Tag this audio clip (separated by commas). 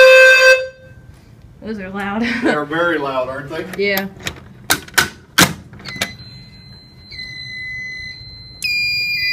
Speech, Fire alarm